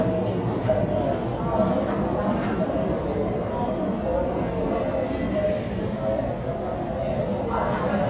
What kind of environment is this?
subway station